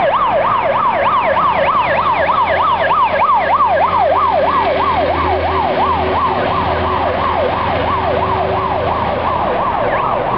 Sirens and vehicles running intermittently